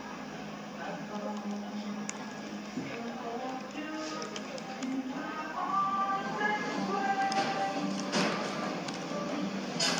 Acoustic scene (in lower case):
cafe